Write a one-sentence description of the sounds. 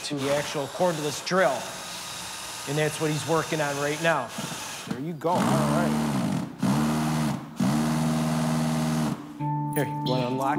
An adult male speaks over a power drill